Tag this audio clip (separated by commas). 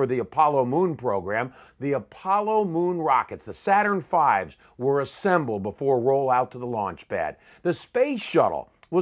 Speech